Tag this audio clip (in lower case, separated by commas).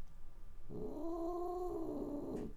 animal, domestic animals, growling, cat